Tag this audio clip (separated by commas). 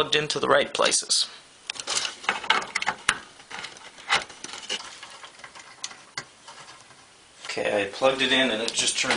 Speech, inside a small room